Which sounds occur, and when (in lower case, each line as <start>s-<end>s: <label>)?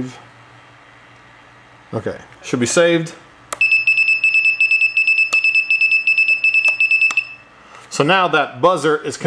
0.0s-0.3s: man speaking
0.0s-9.2s: mechanisms
1.1s-1.2s: tick
1.8s-2.2s: man speaking
2.5s-3.2s: man speaking
3.0s-3.1s: tick
3.5s-3.6s: tick
3.6s-7.5s: buzzer
5.3s-5.4s: tick
6.7s-6.7s: tick
7.1s-7.1s: tick
7.7s-7.9s: breathing
7.8s-9.2s: man speaking